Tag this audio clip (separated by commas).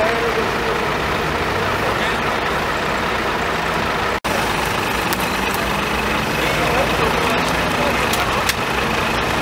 Speech, Vehicle